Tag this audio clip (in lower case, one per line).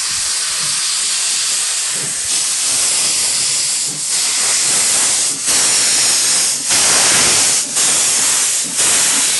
train wagon
vehicle
rail transport
train